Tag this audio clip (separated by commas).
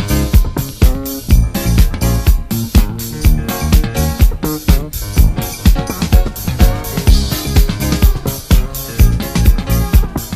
Music, Funk